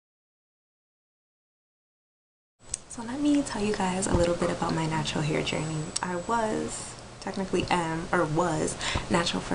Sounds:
Speech, inside a small room

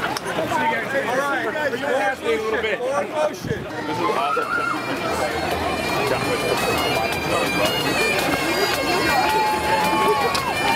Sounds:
Crowd, Speech, Music

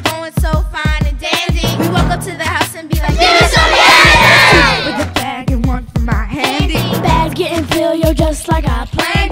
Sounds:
Music

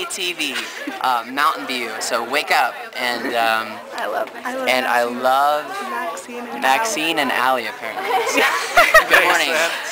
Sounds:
Speech

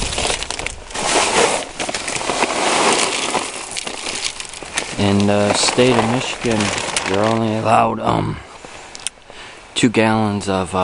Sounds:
Speech

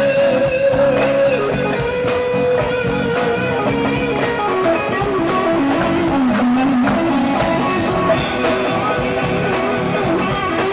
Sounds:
Music, Plucked string instrument, Musical instrument, Electric guitar, Guitar, Strum

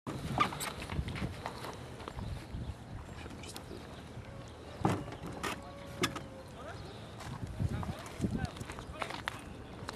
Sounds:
outside, rural or natural, Speech

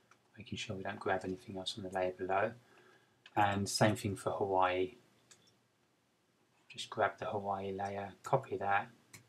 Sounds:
Speech

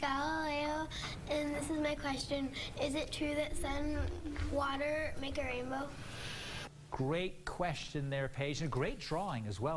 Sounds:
Speech

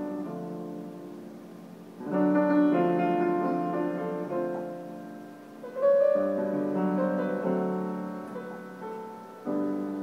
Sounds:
Music

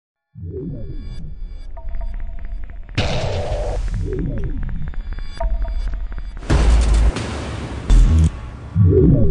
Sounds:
Music

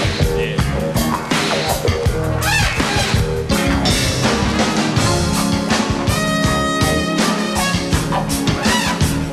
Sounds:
Music

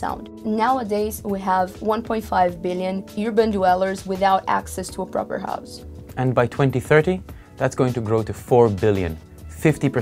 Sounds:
Speech, Music

